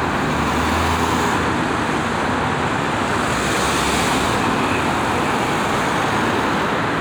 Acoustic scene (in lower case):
street